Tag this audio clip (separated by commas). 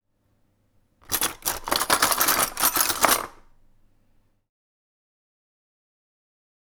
Cutlery, Domestic sounds